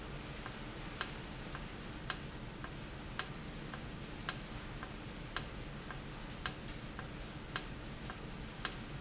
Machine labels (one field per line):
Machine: valve